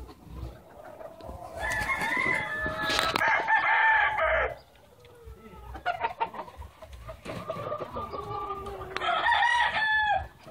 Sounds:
fowl
bird
chicken

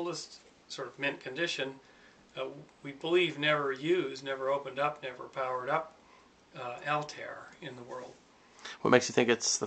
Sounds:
speech

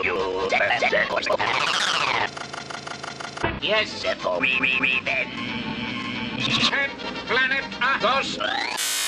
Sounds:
music
speech

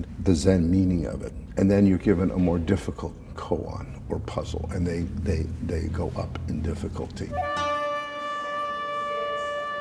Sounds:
music
speech

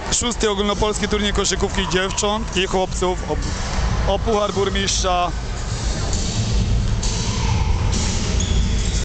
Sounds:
speech

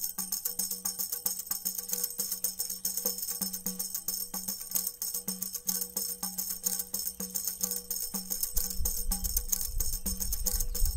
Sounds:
playing tambourine

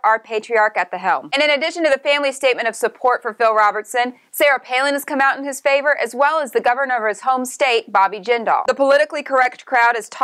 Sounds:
speech

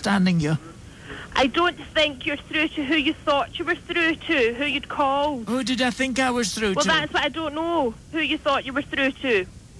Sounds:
speech

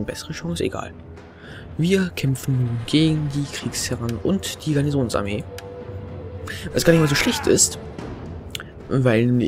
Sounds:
music
speech

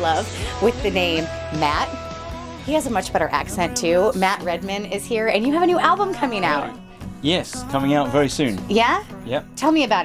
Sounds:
music
speech

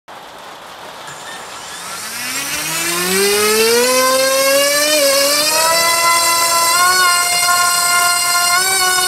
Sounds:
speech

